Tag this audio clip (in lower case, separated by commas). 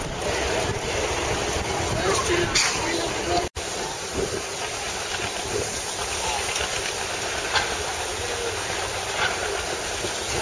engine, speech, vehicle